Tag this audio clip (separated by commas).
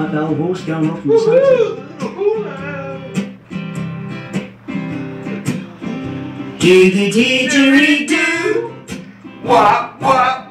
Music, Speech